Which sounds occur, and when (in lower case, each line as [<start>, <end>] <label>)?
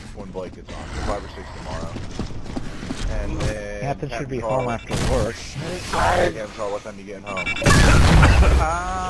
[0.00, 9.05] video game sound